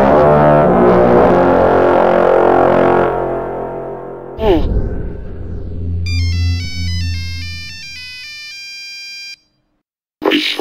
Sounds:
music
ringtone

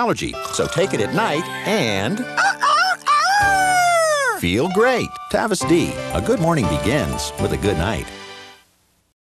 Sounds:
speech
music

